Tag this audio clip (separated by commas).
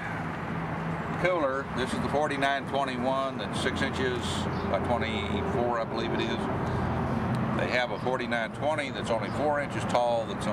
Bird, Speech